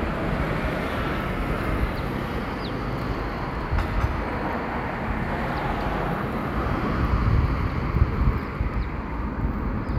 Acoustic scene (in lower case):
street